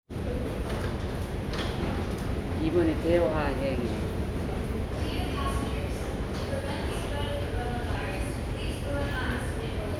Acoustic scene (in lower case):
subway station